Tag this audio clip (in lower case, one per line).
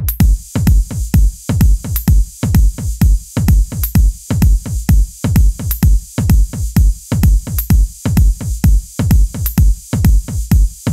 music